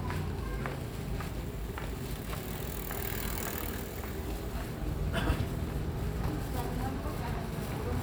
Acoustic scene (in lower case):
residential area